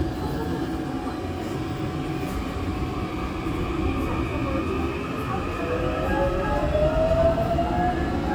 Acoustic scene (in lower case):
subway train